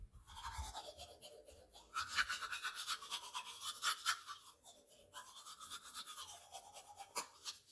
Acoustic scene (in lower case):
restroom